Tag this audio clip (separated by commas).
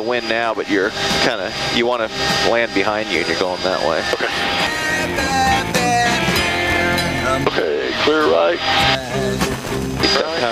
Speech, Music